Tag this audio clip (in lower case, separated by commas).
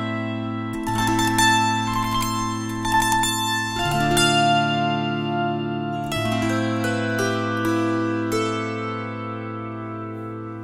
playing zither